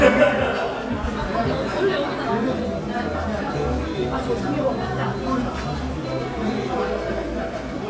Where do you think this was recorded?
in a restaurant